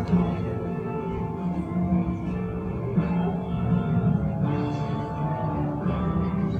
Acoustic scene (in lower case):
cafe